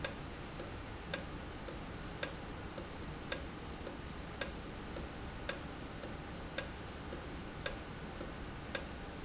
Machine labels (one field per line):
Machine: valve